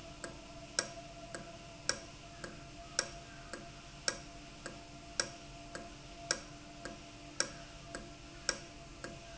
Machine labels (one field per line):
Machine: valve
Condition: normal